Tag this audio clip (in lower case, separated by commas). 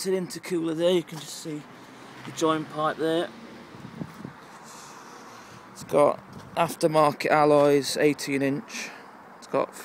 speech